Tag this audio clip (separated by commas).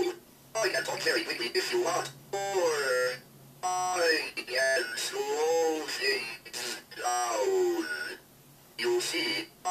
Speech synthesizer